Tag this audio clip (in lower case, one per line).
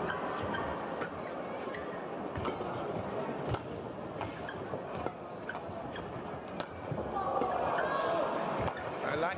playing badminton